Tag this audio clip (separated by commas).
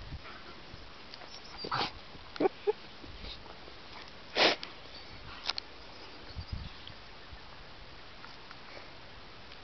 Dog, Animal, Domestic animals